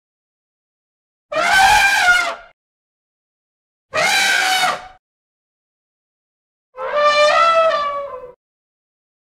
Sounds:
elephant trumpeting

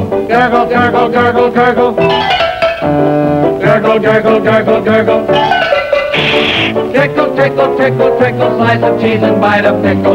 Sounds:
music

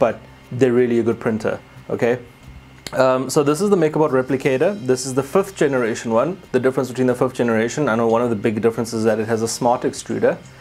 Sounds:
music, speech

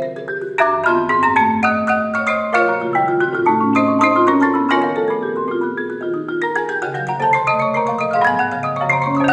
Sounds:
percussion, music

